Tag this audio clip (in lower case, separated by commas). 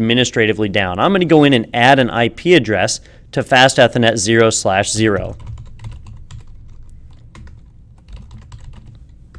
typing, computer keyboard